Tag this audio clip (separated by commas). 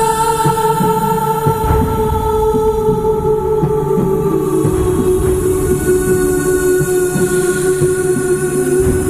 Music